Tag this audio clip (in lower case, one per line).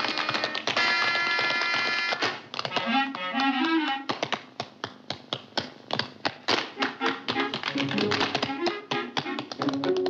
tap dancing